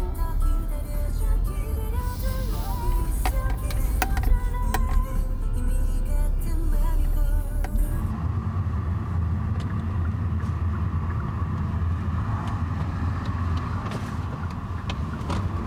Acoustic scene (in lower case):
car